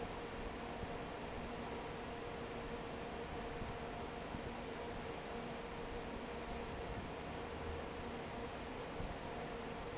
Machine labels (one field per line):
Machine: fan